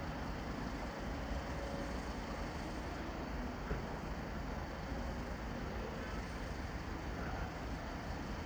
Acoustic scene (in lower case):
residential area